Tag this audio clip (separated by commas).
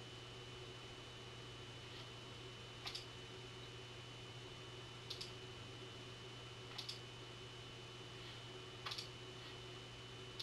inside a small room